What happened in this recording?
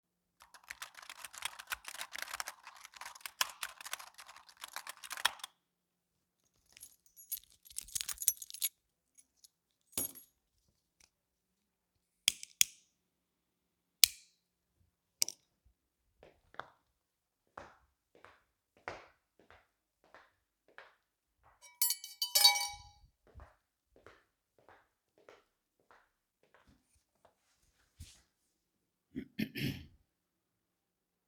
working on PC, while fidgeting with keychain and lighting a cigarette, tapping the lighter on desk and then ending with a quick stir of my tea.